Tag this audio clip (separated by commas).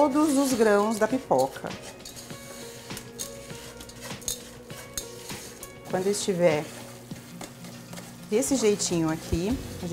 popping popcorn